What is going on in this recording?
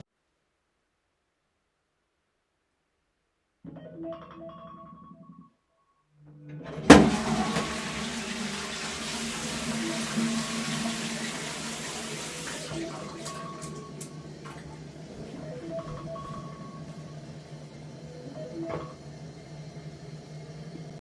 The phone rang then I flushed the toilet and washed my hands. I dried my hands before taking the call.